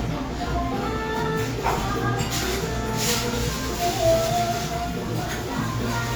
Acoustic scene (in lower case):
cafe